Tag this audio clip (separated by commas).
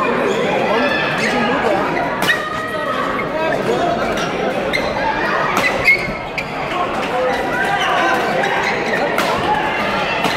playing badminton